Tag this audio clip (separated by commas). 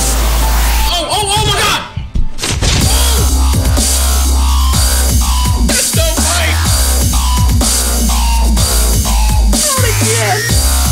Music, Dubstep, Electronic music, Speech